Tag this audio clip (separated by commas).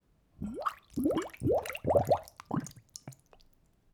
Liquid